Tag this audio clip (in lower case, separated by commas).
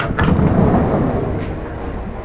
sliding door, vehicle, rail transport, train, domestic sounds, door